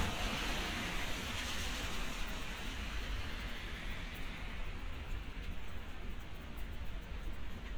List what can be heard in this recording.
engine of unclear size